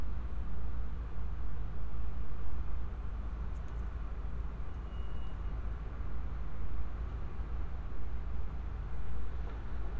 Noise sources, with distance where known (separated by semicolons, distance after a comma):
engine of unclear size